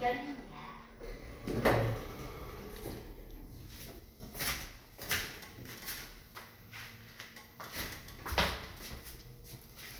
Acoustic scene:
elevator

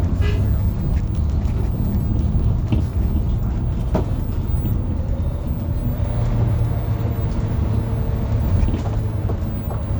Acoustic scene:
bus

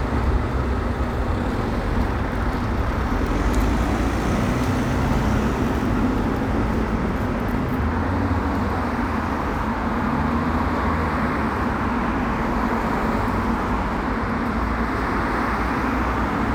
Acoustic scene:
street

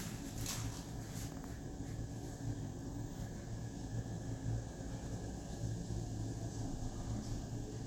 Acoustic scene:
elevator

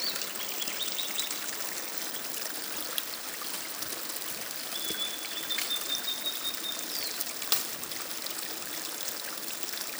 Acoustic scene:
park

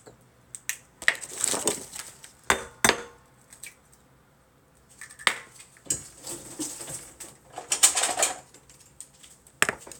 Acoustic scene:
kitchen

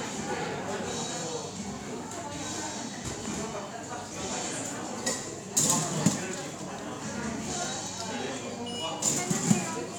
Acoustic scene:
cafe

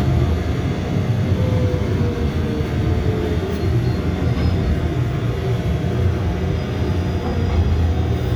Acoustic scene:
subway train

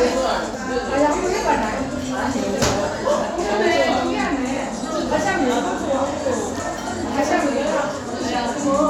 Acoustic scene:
crowded indoor space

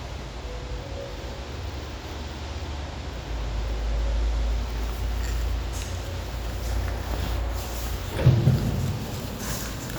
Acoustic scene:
elevator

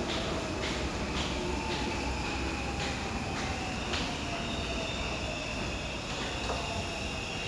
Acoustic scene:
subway station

